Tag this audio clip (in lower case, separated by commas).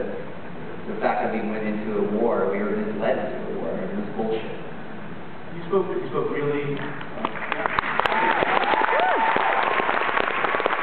man speaking